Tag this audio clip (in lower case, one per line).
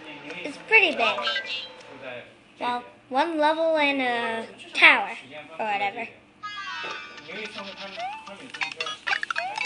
kid speaking